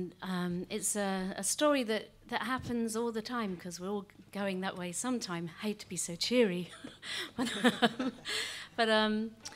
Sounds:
speech

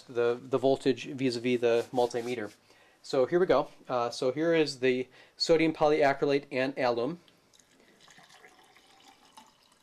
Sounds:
speech

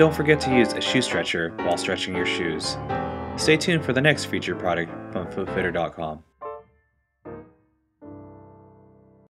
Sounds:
speech, music

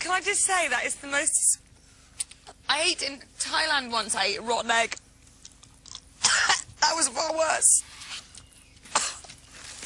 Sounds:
speech

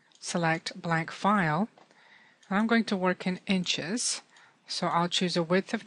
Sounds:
speech

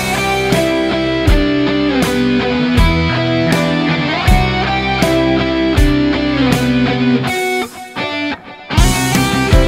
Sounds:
music, plucked string instrument, guitar, playing electric guitar, electric guitar, musical instrument, strum

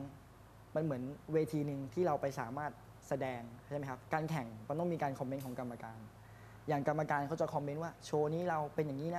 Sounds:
speech

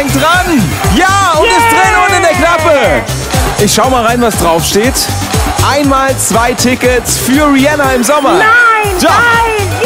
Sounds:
speech, music

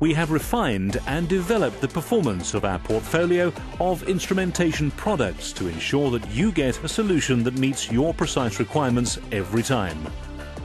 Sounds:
speech, music

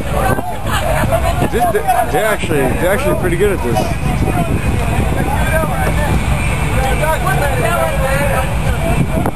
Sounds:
speech

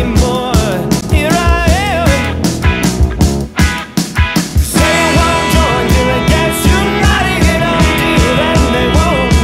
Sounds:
grunge, music

